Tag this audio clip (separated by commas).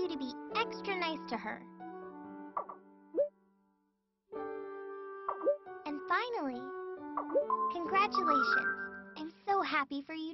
Child speech